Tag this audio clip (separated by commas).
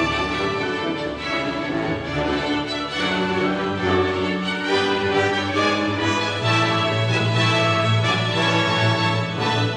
Music, Musical instrument, Violin